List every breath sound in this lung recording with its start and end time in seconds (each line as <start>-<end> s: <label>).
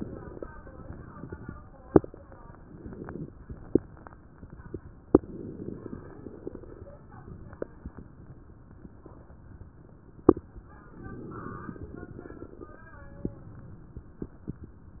2.69-3.36 s: inhalation
5.14-6.79 s: inhalation
5.14-6.79 s: crackles
10.95-12.83 s: inhalation
10.95-12.83 s: crackles